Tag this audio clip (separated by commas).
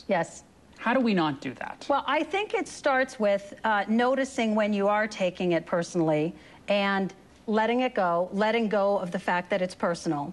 Speech, Conversation